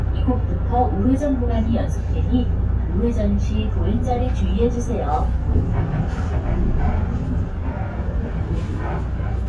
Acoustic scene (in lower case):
bus